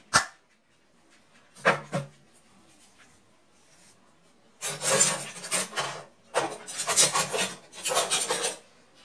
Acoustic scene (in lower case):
kitchen